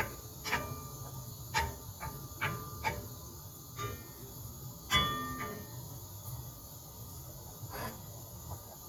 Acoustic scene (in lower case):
kitchen